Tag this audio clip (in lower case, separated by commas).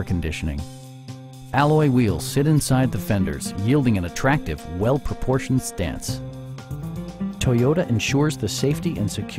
speech, music